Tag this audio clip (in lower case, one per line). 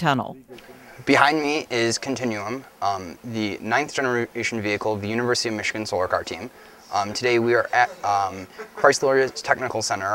speech